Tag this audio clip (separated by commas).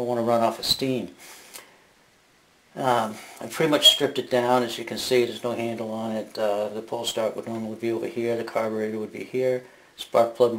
Speech